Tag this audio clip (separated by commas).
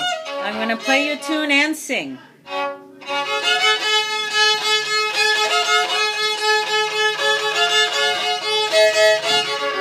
Speech, Musical instrument, Music, Violin